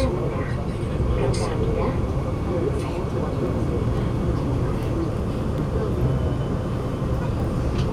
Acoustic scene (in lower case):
subway train